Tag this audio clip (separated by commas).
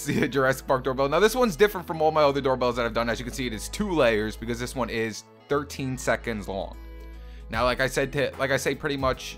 Speech, Music